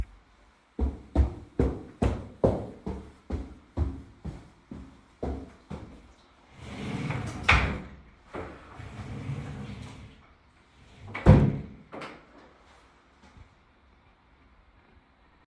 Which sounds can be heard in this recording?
footsteps, wardrobe or drawer